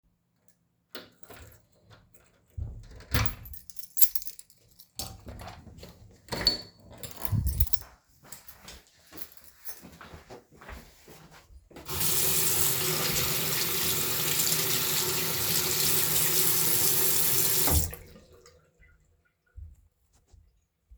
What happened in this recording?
I unlock and open the door, walk to the bathroom and wash my hands.